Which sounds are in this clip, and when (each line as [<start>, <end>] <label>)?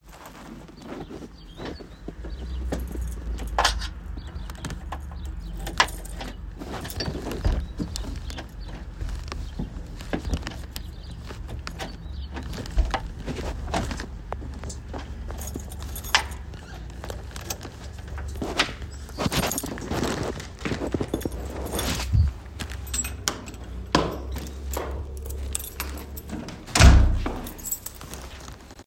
[3.51, 3.89] keys
[5.70, 6.00] keys
[6.80, 7.75] keys
[15.34, 16.05] keys
[19.22, 19.74] keys
[21.41, 22.49] keys
[22.83, 23.31] keys
[23.72, 25.40] footsteps
[25.44, 25.92] keys
[26.31, 27.59] door
[27.71, 28.23] keys